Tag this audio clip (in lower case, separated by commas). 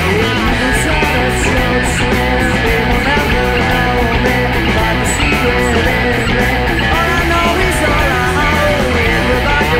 music, pop music